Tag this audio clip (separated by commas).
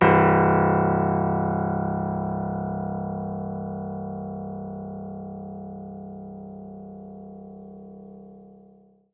Musical instrument, Keyboard (musical), Music, Piano